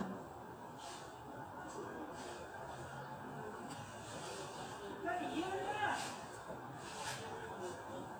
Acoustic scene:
residential area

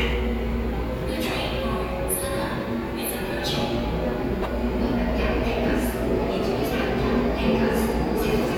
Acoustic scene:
subway station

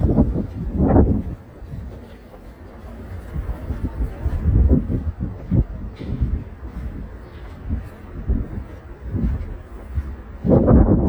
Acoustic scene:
residential area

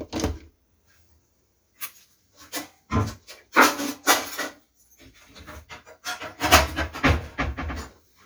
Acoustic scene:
kitchen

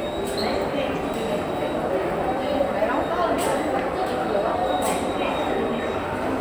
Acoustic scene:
subway station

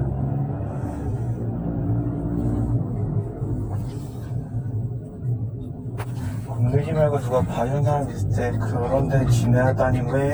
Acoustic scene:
car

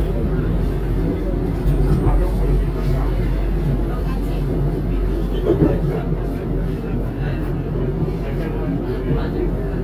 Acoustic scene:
subway train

